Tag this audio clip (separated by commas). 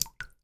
Liquid, Water, Drip